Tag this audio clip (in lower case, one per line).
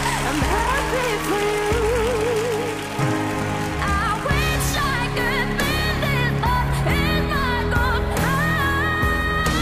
child singing